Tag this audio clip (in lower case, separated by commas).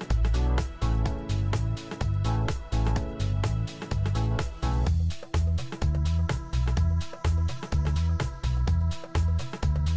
music